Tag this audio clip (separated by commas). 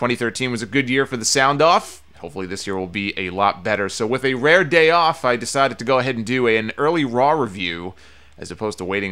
Speech